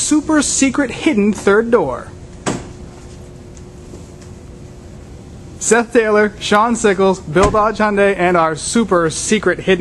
A man speaking followed by a door closing, followed by more speaking